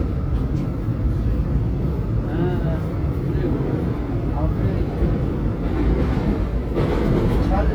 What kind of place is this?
subway train